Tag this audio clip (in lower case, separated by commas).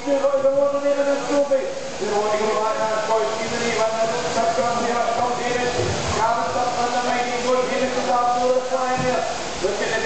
speech